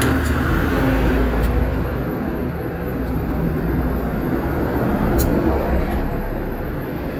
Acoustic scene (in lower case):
street